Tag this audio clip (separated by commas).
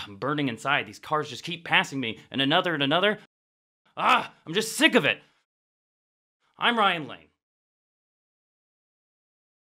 Speech